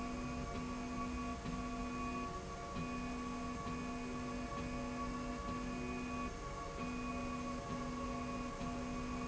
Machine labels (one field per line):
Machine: slide rail